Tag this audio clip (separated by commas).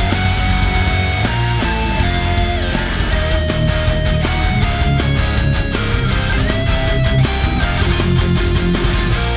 Strum, Plucked string instrument, Electric guitar, Music, Musical instrument, Guitar